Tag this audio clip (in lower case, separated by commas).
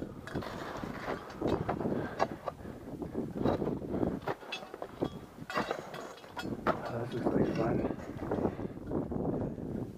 speech